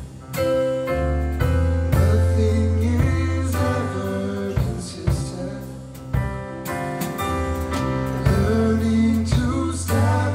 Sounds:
music
singing

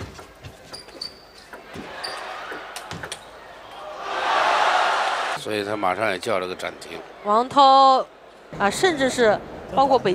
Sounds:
speech

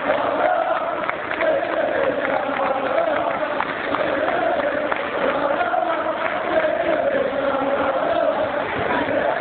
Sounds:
speech

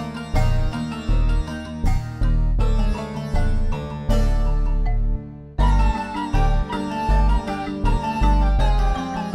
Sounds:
harpsichord

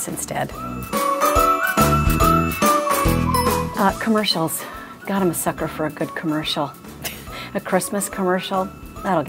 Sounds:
music
speech

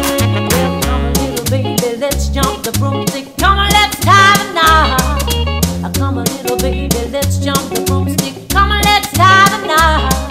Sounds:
inside a small room
music

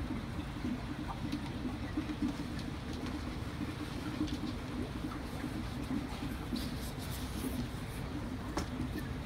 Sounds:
otter growling

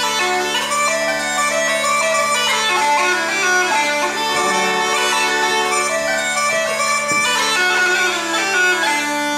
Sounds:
woodwind instrument
playing bagpipes
bagpipes

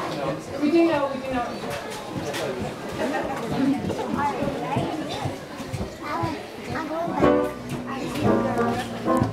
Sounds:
music
musical instrument
speech

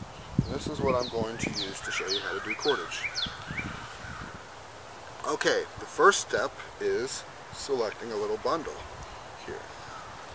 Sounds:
bird
speech
livestock

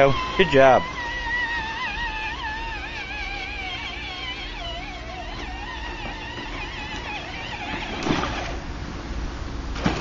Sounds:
speech
vehicle
outside, rural or natural

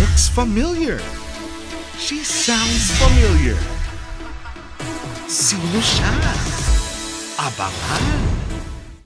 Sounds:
sound effect
speech
music

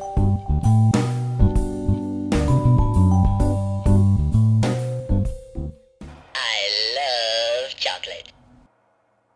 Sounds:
music
musical instrument
plucked string instrument
guitar
speech

